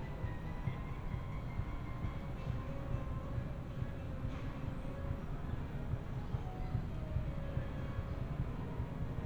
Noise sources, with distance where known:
music from a fixed source

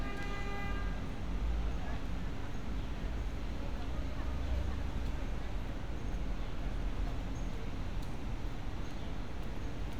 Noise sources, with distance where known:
car horn

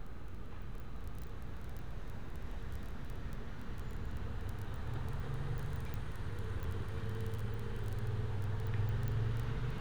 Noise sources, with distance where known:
engine of unclear size

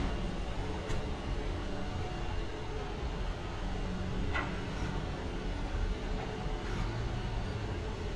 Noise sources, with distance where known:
non-machinery impact

